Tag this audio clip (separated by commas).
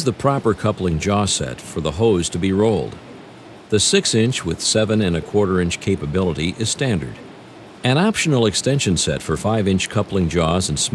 Speech